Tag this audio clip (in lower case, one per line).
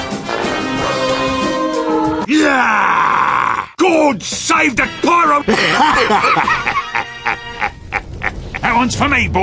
speech
music
inside a small room